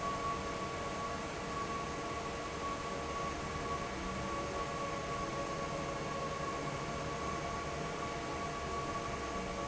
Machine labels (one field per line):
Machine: fan